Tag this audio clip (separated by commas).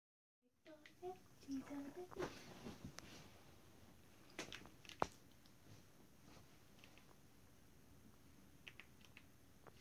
Speech